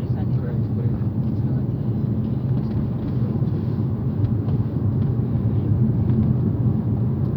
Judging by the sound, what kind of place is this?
car